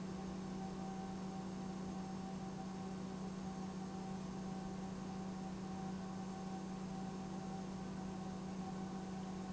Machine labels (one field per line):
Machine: pump